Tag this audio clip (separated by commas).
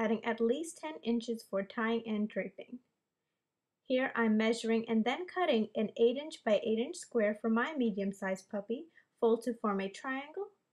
Speech